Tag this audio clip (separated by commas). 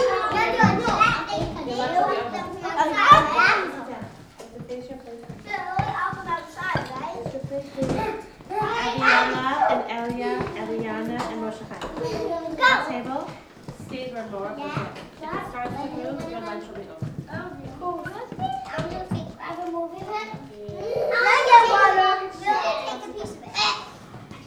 Chatter, Human group actions